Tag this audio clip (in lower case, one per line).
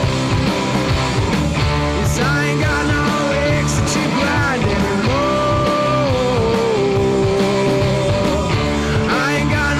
music